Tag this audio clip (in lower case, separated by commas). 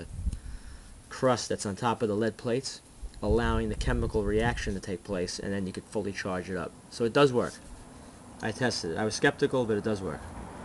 speech